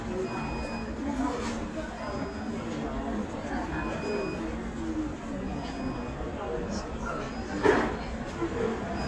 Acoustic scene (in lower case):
crowded indoor space